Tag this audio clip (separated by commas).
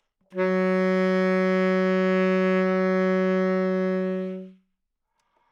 woodwind instrument, Music, Musical instrument